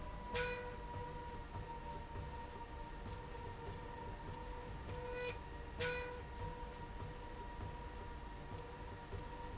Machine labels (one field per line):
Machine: slide rail